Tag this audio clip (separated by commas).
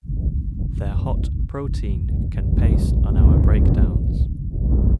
Speech, Wind, Human voice